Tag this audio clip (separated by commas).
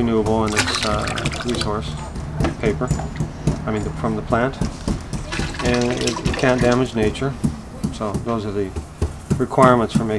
Water